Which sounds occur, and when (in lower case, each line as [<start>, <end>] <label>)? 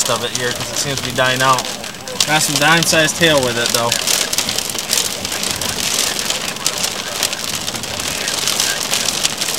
[0.00, 1.63] male speech
[0.00, 9.55] radio
[0.00, 9.55] rain on surface
[2.09, 3.95] male speech
[5.22, 6.04] windscreen wiper
[7.39, 7.87] windscreen wiper